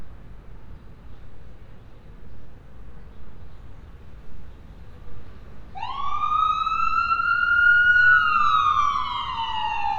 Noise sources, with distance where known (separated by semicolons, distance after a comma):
siren, near